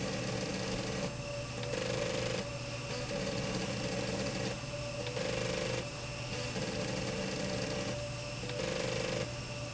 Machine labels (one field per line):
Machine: slide rail